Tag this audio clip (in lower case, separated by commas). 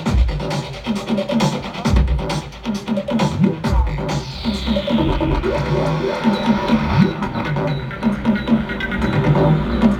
music